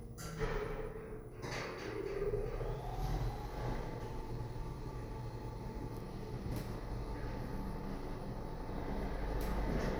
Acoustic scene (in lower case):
elevator